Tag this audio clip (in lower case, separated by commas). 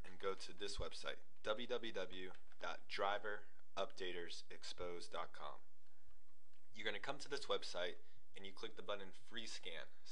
speech